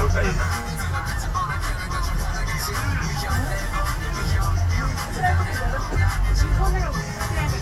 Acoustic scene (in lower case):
car